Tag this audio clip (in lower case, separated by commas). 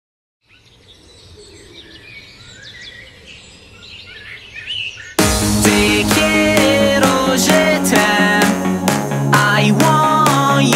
tweet, bird, bird vocalization